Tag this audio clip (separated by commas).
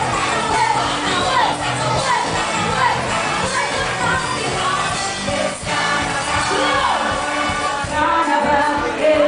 Music, Exciting music